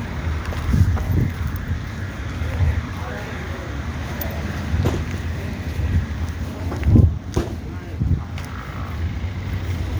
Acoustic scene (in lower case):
residential area